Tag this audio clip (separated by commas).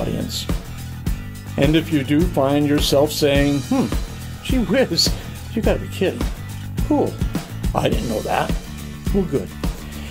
Speech, Music